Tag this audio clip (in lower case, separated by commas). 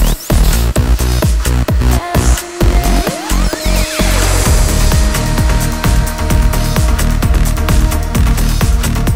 music, electronic music